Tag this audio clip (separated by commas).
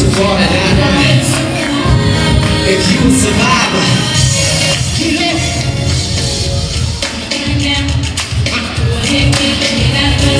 Speech, Music